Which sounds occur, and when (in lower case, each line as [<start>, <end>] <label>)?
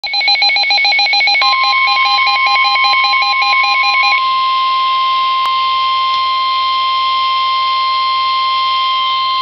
[0.00, 4.17] bleep
[0.00, 9.41] alarm
[0.00, 9.41] mechanisms